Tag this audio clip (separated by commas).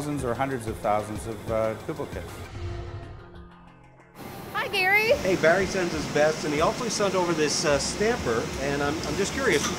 inside a large room or hall, Speech, inside a small room, Music